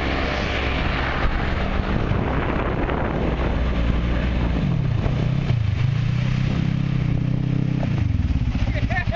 A vehicle passes quickly and wind blows